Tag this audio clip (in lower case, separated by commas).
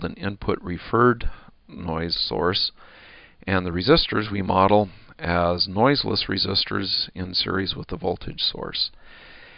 speech